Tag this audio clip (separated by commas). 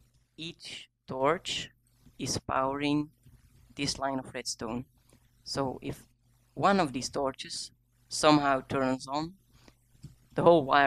Speech